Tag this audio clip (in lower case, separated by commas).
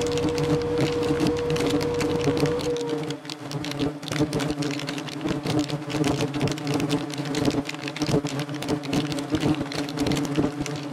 bee